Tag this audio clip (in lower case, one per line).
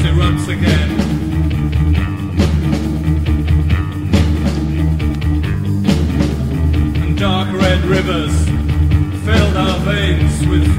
psychedelic rock
music